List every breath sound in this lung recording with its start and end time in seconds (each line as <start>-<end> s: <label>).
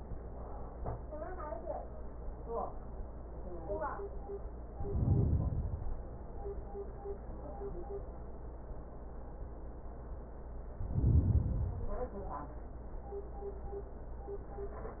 4.67-6.17 s: inhalation
10.68-12.18 s: inhalation